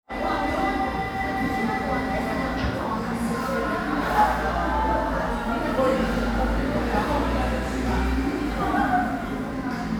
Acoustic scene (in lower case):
crowded indoor space